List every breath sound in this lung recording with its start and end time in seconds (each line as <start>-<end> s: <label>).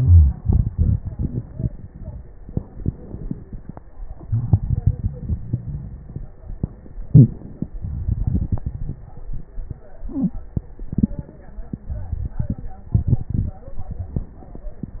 2.37-3.87 s: inhalation
2.37-3.87 s: crackles
4.06-6.44 s: exhalation
6.99-7.74 s: inhalation
7.77-9.51 s: exhalation
7.77-9.51 s: crackles